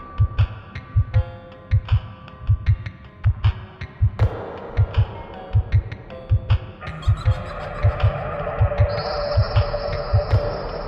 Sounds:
music, dubstep

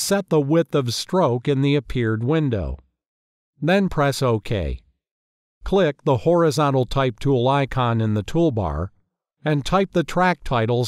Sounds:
speech, speech synthesizer

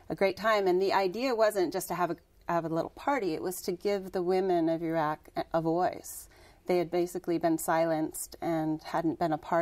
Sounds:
speech, woman speaking

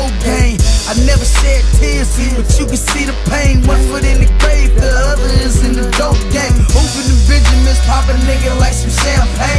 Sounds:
music

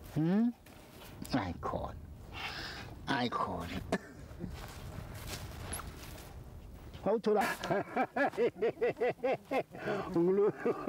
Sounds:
otter growling

